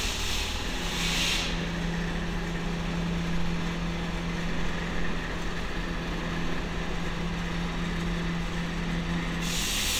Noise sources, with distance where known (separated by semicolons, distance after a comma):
engine of unclear size